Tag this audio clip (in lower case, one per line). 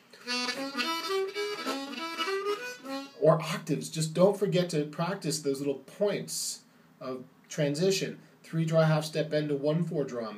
speech
harmonica
music